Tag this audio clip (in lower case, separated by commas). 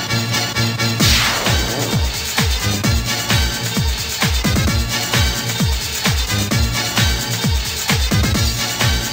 music, techno, soundtrack music